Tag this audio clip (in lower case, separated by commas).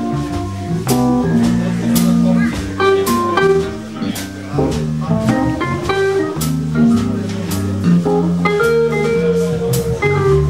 electric guitar, musical instrument, strum, music, speech, plucked string instrument, guitar